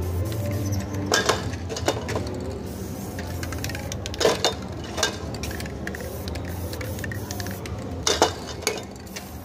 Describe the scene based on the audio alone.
While music plays and people talk in the background, metal clanking and rattling are present and random hisses occur